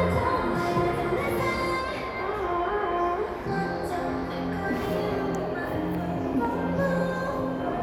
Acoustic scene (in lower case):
crowded indoor space